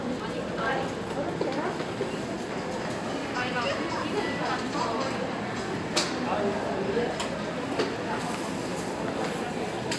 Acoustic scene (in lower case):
crowded indoor space